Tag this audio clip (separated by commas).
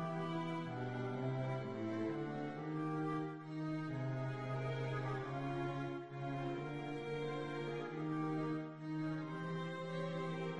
Musical instrument, Music, Violin